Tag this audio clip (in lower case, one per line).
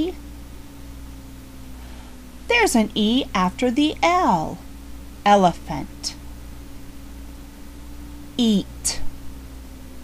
speech